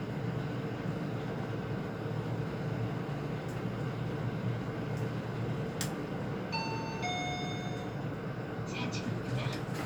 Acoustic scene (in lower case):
elevator